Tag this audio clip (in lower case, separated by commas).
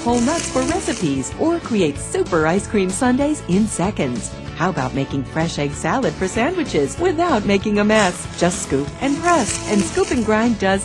music, speech